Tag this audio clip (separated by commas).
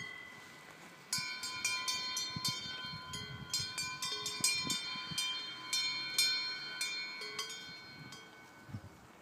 bovinae cowbell